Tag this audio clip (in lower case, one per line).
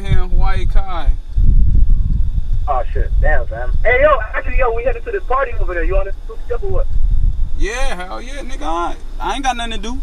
speech